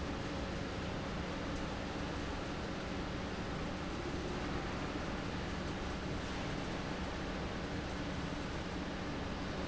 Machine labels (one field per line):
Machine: fan